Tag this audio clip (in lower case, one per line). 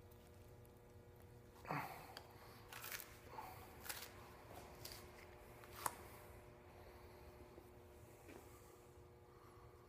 tearing